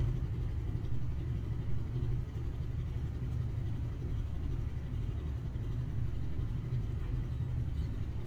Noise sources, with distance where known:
engine of unclear size

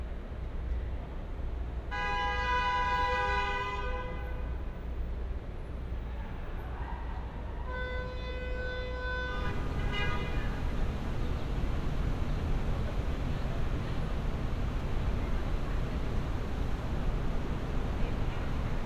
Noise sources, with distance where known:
car horn

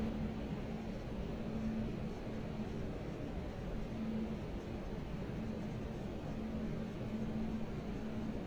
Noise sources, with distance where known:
engine of unclear size, far

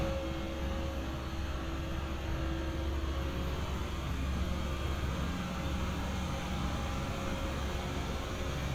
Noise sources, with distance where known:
engine of unclear size, near

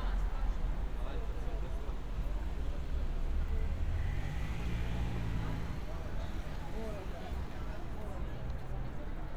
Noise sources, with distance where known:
medium-sounding engine, far; person or small group talking, far

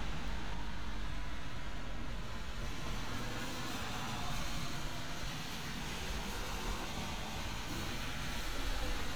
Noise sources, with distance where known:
engine of unclear size, near

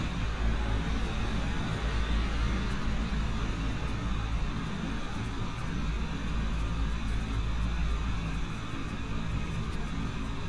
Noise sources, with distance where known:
large-sounding engine

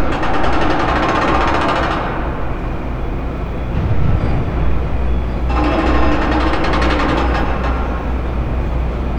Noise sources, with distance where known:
unidentified impact machinery, near

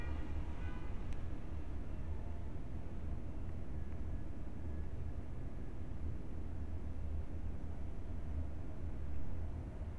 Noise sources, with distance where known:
background noise

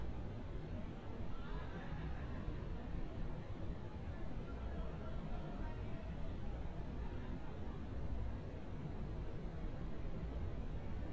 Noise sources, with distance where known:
person or small group shouting, far

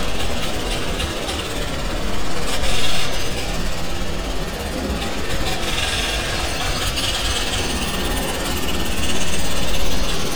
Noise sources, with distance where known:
unidentified impact machinery, near

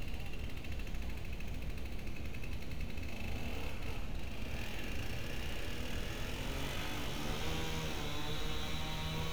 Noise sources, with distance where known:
small or medium rotating saw

